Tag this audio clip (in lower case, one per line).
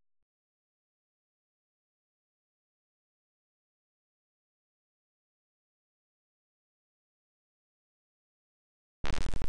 silence